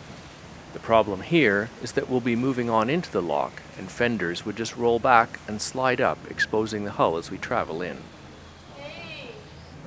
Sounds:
Speech

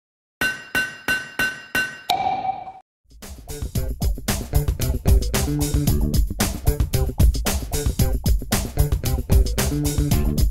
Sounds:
Music

